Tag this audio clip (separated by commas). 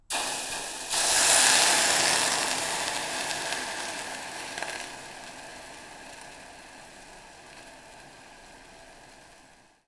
Hiss